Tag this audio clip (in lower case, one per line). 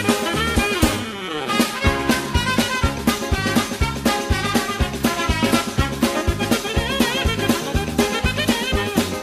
music